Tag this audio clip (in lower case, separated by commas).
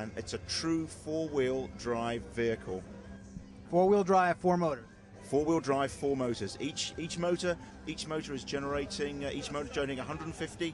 speech